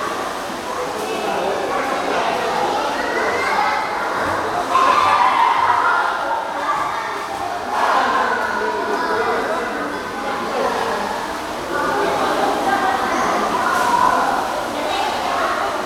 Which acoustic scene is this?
crowded indoor space